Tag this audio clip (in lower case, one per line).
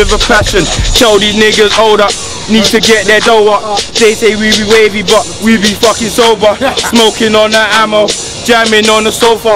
music